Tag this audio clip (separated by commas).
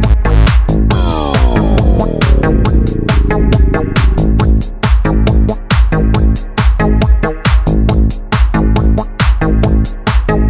Music, House music, Techno